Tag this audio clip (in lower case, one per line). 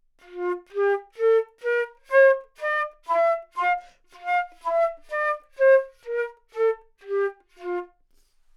woodwind instrument
music
musical instrument